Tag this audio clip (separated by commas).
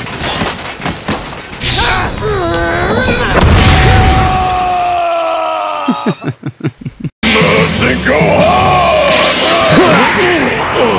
Speech, Music